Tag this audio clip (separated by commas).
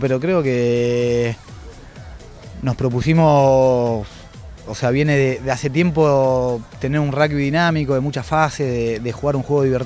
Speech, Music